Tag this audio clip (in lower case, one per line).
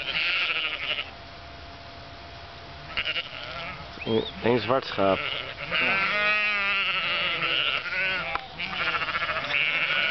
livestock